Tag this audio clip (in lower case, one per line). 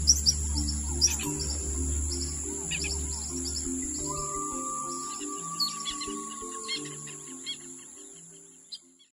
music